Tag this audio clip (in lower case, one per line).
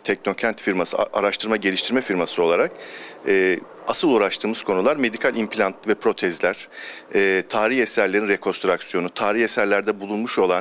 speech